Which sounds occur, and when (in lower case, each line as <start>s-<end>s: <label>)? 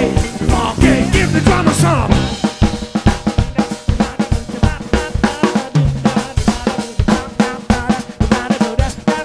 0.0s-9.2s: music
0.4s-2.0s: male singing
3.2s-5.8s: male singing
6.0s-6.9s: male singing
7.0s-8.0s: male singing
8.2s-8.9s: male singing
9.0s-9.2s: male singing